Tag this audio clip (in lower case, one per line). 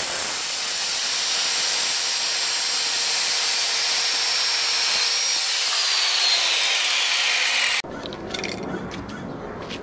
outside, urban or man-made